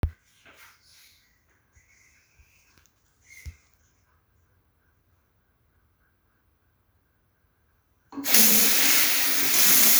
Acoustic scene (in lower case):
restroom